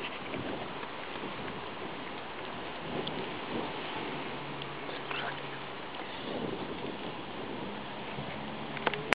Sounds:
Bird, Animal

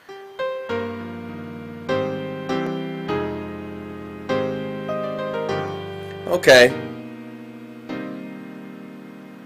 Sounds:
Speech, Music

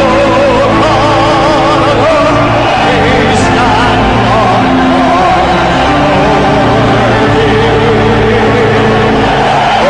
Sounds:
Music

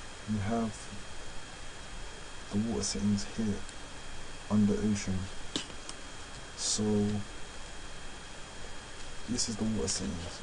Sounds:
Speech

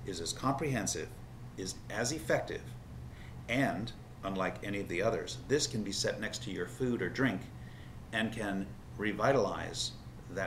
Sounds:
inside a small room, Speech

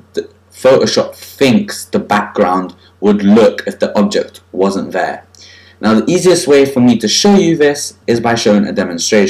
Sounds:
Speech

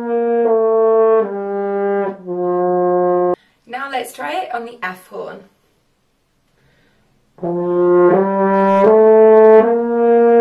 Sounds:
playing french horn

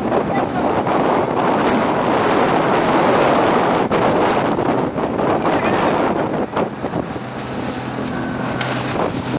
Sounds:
Sailboat, sailing

